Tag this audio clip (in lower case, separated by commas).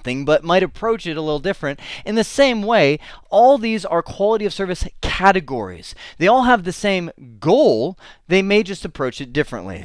speech